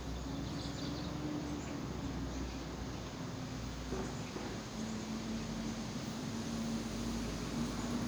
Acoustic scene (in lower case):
park